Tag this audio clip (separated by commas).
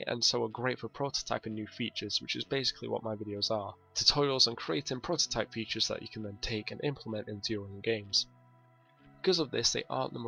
Speech, Music